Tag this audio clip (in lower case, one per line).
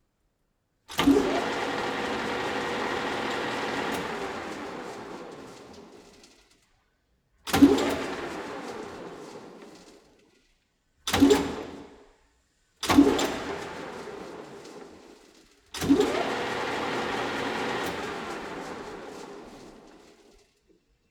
mechanisms